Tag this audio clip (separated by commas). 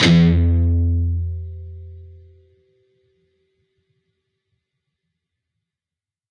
Musical instrument, Music, Plucked string instrument, Guitar